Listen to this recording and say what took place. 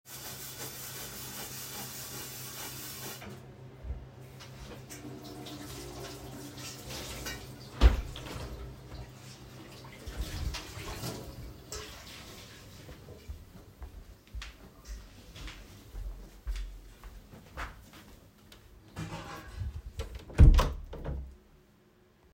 I close the window in the kitchen while someone is washing the dishes with the water running in the background. I then go to my room and close the door.